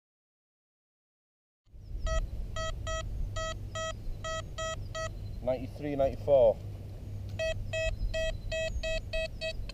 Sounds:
speech

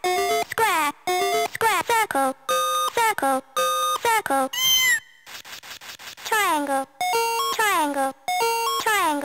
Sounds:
speech
music

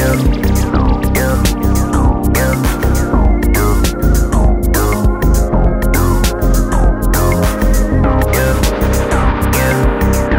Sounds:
synthesizer
electronic music
music
musical instrument
house music
funk

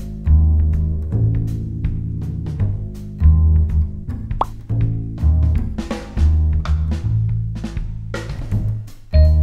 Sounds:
jazz

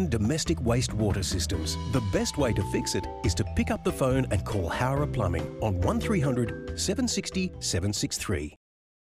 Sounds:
music
speech

